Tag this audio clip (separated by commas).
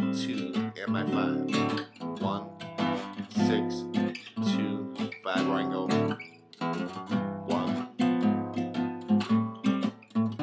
Music, Strum, Guitar, Plucked string instrument, Musical instrument